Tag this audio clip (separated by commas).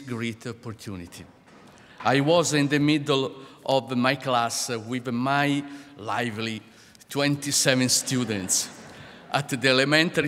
man speaking, Speech, monologue